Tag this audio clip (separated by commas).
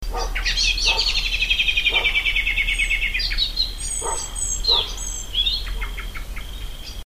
Wild animals, Dog, Bird, Animal, pets